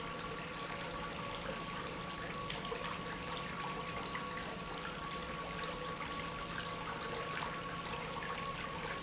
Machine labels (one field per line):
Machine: pump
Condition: abnormal